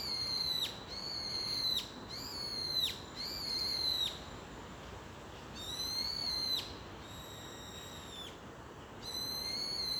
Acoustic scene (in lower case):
park